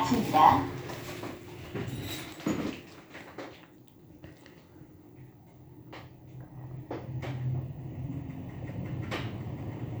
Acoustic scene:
elevator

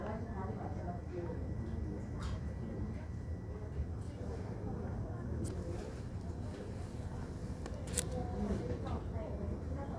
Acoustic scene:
crowded indoor space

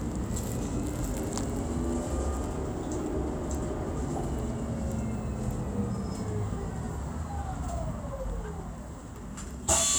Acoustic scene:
bus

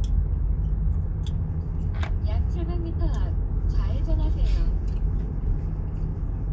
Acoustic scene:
car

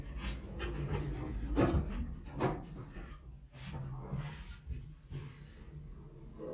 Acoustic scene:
elevator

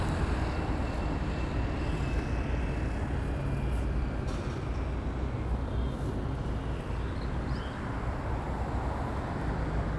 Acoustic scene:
residential area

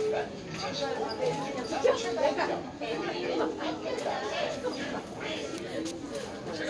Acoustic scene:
crowded indoor space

